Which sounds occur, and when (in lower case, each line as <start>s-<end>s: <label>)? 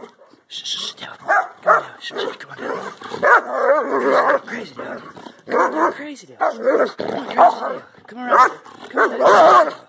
0.0s-0.4s: dog
0.0s-9.8s: background noise
0.5s-1.1s: whispering
1.2s-1.5s: bark
1.6s-1.9s: bark
1.7s-3.2s: whispering
2.1s-2.3s: growling
2.6s-2.9s: growling
3.2s-3.4s: bark
3.4s-4.4s: growling
4.4s-5.3s: whispering
4.8s-5.3s: growling
5.4s-5.9s: bark
5.4s-6.1s: growling
5.9s-6.2s: whispering
6.4s-7.9s: growling
6.8s-7.8s: whispering
8.1s-8.6s: whispering
8.2s-8.5s: bark
8.9s-9.8s: bark
8.9s-9.8s: whispering